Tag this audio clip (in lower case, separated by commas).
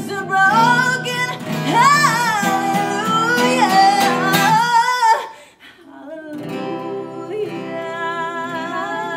music, inside a small room, singing